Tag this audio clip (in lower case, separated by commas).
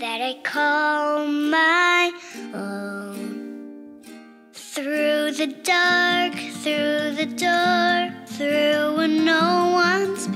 child singing